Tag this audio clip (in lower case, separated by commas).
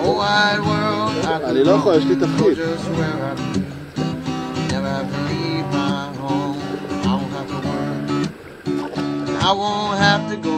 music, speech